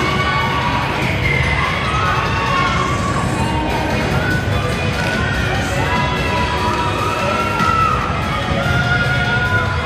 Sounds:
music
cheering
inside a large room or hall

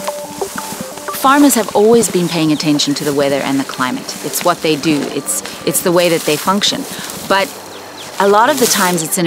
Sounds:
music
speech

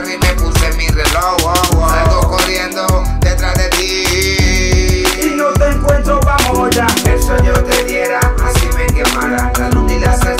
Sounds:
music

